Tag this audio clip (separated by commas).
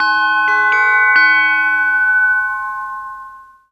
Bell